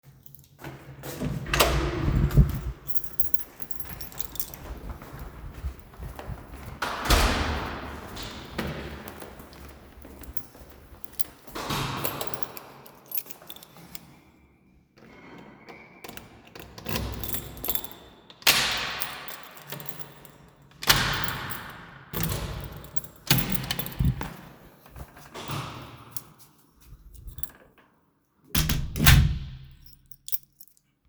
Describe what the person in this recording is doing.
I walked through the hallway, grabbed my key to unlock my door lock, opened it and clsed it, put back my key